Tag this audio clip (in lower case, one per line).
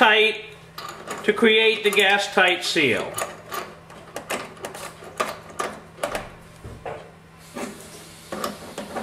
inside a small room
speech